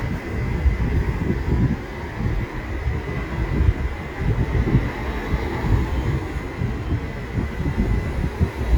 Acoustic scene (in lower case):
street